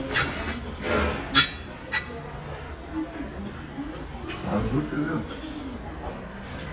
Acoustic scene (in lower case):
restaurant